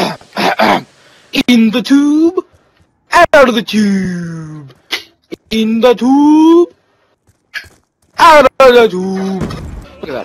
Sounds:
Speech

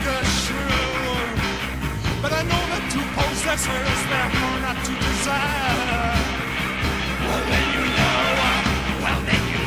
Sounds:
Yell

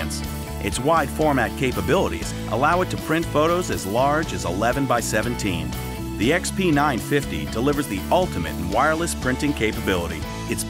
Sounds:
Music, Speech

